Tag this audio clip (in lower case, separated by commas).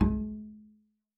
music, musical instrument, bowed string instrument